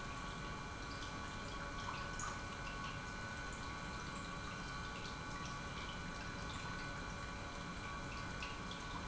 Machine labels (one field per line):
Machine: pump